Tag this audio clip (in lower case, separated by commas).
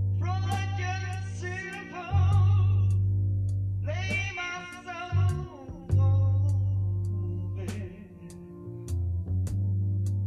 music